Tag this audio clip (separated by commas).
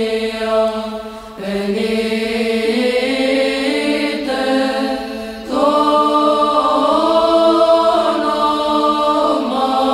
Mantra